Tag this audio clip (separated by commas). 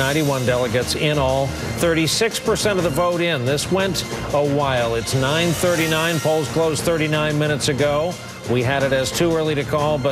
Speech, man speaking, Music, monologue